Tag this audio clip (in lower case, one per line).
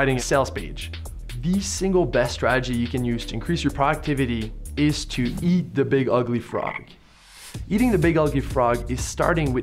frog
croak